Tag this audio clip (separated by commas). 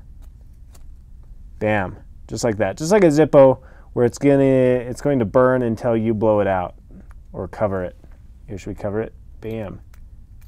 strike lighter